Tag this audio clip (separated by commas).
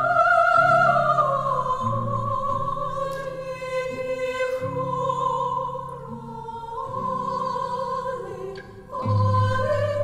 Choir, Opera, Singing, Music